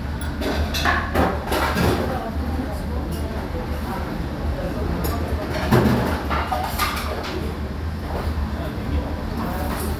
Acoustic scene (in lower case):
restaurant